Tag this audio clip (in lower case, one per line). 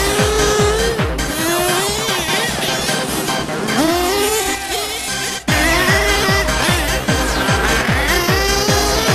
vroom
music
vehicle